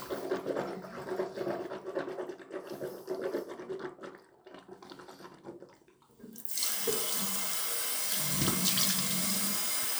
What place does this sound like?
restroom